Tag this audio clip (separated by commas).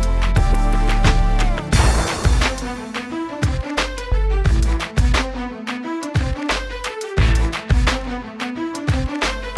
Music, Electronic music, Techno